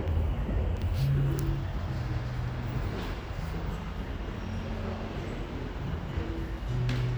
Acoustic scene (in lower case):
cafe